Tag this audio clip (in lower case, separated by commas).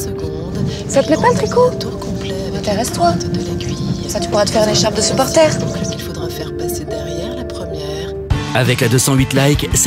music, radio, speech